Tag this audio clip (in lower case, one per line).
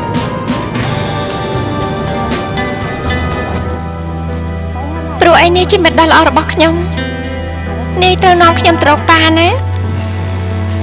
speech
music